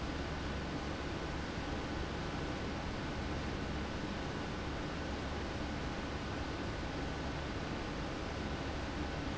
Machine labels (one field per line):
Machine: fan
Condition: abnormal